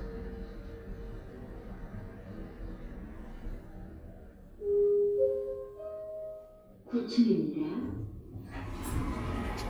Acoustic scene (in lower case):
elevator